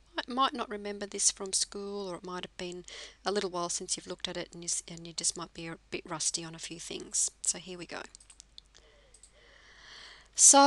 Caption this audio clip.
A woman speaking in a narrative manner